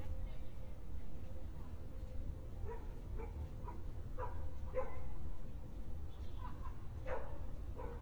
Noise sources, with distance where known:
person or small group talking, far
dog barking or whining

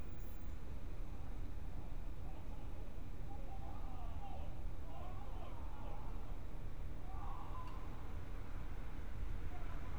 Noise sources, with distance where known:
unidentified human voice, far

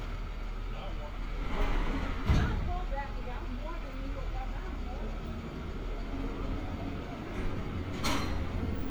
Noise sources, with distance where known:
engine of unclear size, near

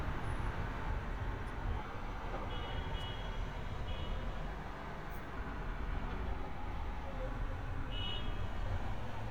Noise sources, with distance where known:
car horn, far

